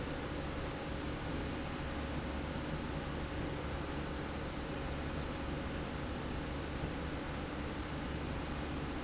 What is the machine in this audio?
slide rail